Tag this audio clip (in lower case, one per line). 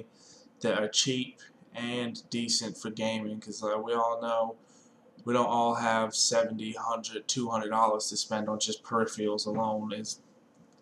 speech